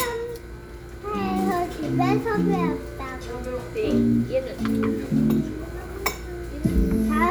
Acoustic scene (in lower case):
restaurant